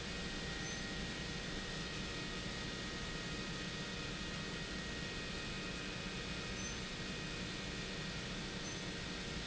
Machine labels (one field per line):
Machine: pump